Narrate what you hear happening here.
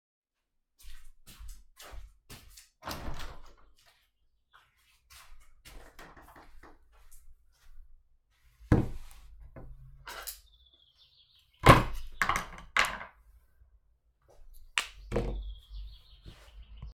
I went to the patio door and opened it. I went back to the table. I first but a cup on the table, then knife, spoon and breakfast board on it.